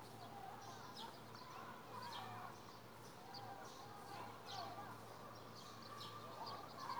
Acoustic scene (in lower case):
residential area